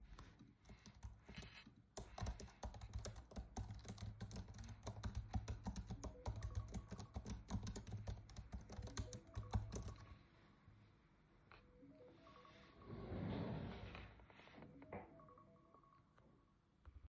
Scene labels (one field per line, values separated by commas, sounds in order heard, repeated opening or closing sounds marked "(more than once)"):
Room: bedroom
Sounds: keyboard typing, phone ringing, wardrobe or drawer